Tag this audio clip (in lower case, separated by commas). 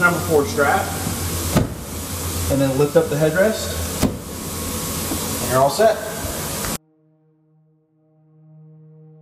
speech